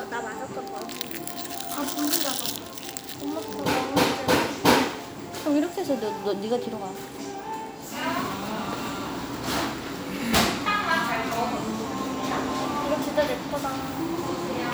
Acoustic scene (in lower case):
cafe